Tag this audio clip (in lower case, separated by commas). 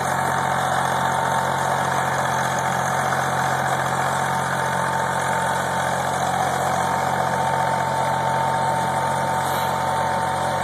vehicle